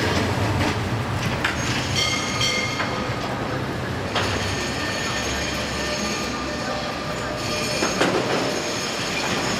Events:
0.0s-0.2s: clickety-clack
0.0s-9.5s: train
0.5s-0.9s: clickety-clack
1.2s-1.5s: generic impact sounds
1.6s-1.8s: generic impact sounds
1.8s-3.1s: bell
2.7s-2.9s: generic impact sounds
3.1s-3.3s: generic impact sounds
4.1s-9.5s: train wheels squealing
4.1s-4.2s: generic impact sounds
7.8s-8.5s: clickety-clack

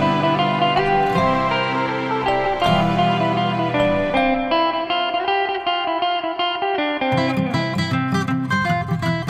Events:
0.0s-9.2s: music

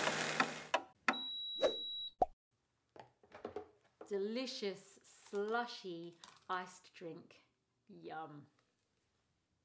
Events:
0.0s-0.7s: blender
0.3s-0.4s: generic impact sounds
0.6s-0.8s: generic impact sounds
1.0s-1.2s: generic impact sounds
1.1s-2.1s: bleep
1.5s-1.7s: sound effect
2.1s-2.3s: sound effect
2.9s-4.0s: generic impact sounds
4.0s-6.1s: female speech
5.2s-5.5s: generic impact sounds
6.0s-6.4s: generic impact sounds
6.4s-7.4s: female speech
7.8s-8.5s: female speech
8.5s-8.6s: generic impact sounds

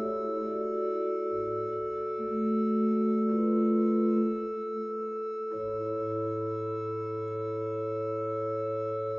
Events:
0.0s-9.1s: music
7.3s-7.3s: tick

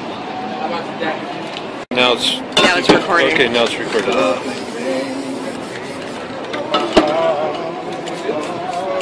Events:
0.0s-0.6s: human voice
0.0s-9.0s: motor vehicle (road)
0.7s-1.2s: man speaking
0.7s-9.0s: conversation
1.5s-1.5s: generic impact sounds
1.9s-2.3s: man speaking
2.5s-3.4s: female speech
2.5s-2.9s: generic impact sounds
3.0s-5.0s: man speaking
3.6s-3.6s: generic impact sounds
3.8s-4.0s: generic impact sounds
4.2s-6.4s: spray
6.4s-7.1s: generic impact sounds
7.0s-7.7s: man speaking
8.0s-9.0s: spray
8.2s-9.0s: man speaking

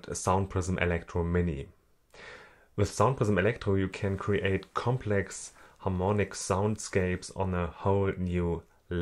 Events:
0.0s-1.7s: man speaking
0.0s-9.0s: background noise
2.1s-2.7s: breathing
2.8s-5.5s: man speaking
5.5s-5.8s: breathing
5.8s-9.0s: man speaking

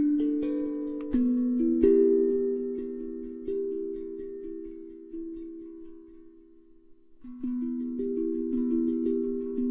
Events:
0.0s-9.7s: mechanisms
0.0s-9.7s: music
0.9s-1.0s: tick

